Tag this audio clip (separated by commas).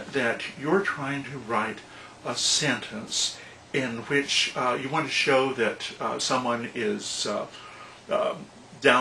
Speech